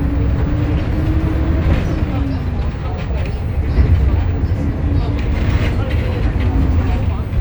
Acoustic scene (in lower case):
bus